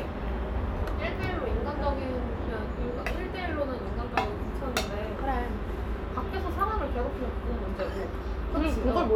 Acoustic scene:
restaurant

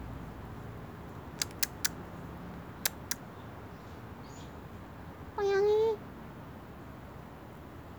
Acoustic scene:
residential area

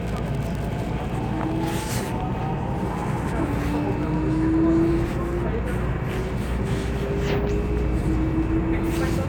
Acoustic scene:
subway train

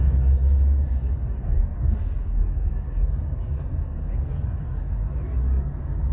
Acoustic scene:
car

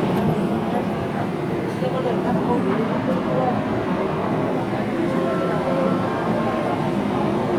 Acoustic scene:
subway train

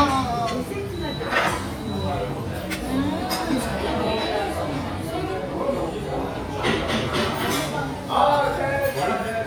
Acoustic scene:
restaurant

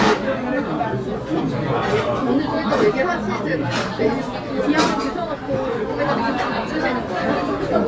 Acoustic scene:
restaurant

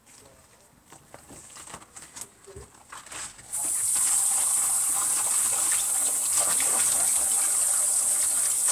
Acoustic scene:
kitchen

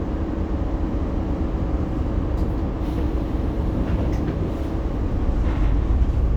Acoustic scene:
bus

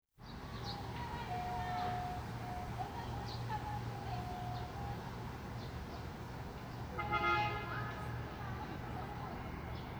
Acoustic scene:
residential area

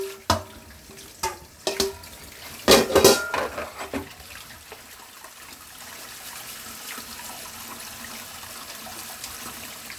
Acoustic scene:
kitchen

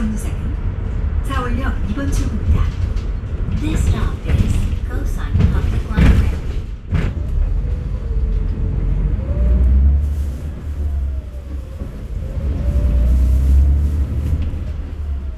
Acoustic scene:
bus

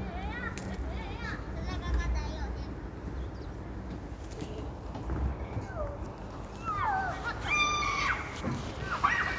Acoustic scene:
residential area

